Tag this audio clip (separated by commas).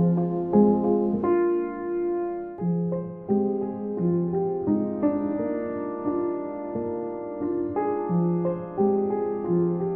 Music